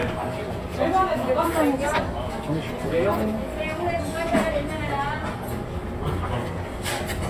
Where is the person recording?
in a restaurant